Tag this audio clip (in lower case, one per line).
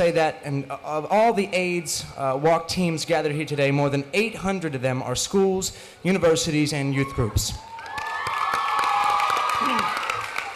speech